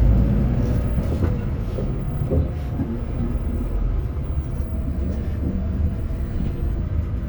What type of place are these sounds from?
bus